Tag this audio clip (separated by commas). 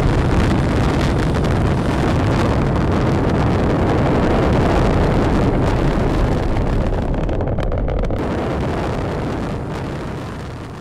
missile launch